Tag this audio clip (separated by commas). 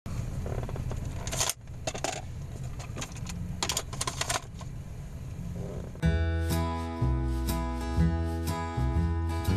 Music